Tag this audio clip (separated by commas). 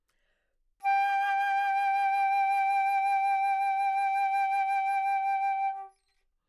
Musical instrument, Music, Wind instrument